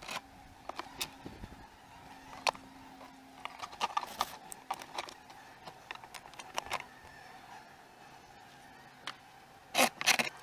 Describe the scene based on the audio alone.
Clicking sounds occur, and insects are buzzing